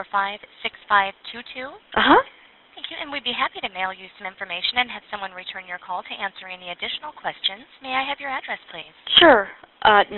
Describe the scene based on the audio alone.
A woman speaking over the phone